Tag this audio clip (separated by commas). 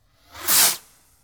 Explosion, Fireworks